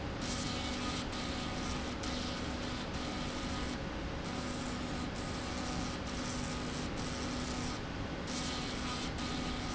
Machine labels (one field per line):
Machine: slide rail